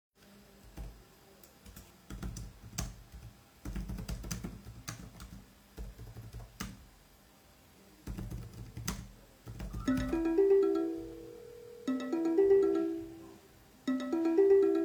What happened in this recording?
type on a keyboard, while the phone rings